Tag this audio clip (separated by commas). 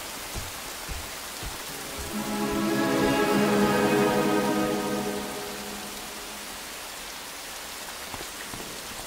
Music, Rain on surface